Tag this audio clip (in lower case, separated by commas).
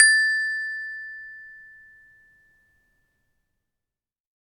percussion, musical instrument, music, mallet percussion, marimba